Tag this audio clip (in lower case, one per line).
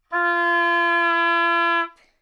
musical instrument
wind instrument
music